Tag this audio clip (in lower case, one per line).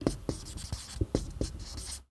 domestic sounds
writing